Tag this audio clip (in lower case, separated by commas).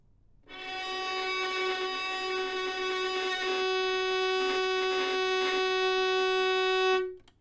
musical instrument, bowed string instrument, music